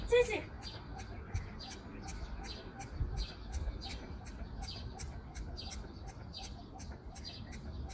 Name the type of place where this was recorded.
park